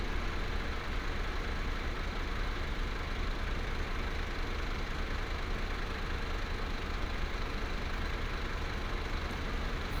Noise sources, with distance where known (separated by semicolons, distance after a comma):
large-sounding engine, near